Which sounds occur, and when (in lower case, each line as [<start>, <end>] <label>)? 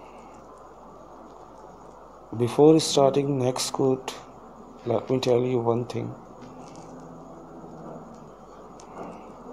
[0.00, 9.52] mechanisms
[2.33, 4.05] male speech
[4.07, 4.31] generic impact sounds
[4.80, 6.18] male speech
[4.94, 5.17] generic impact sounds
[6.40, 7.00] generic impact sounds
[8.13, 8.23] tick
[8.81, 8.89] tick
[8.88, 9.43] generic impact sounds